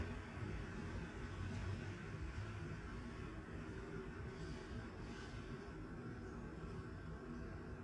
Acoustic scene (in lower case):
residential area